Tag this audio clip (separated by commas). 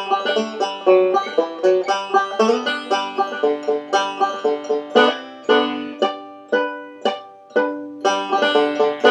Music